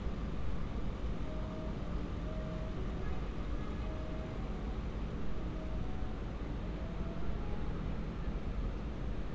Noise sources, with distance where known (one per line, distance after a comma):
car horn, far